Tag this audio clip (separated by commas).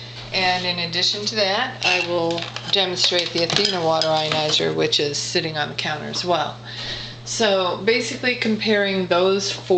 Speech